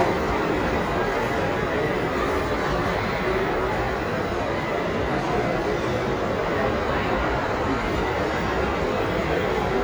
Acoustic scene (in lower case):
crowded indoor space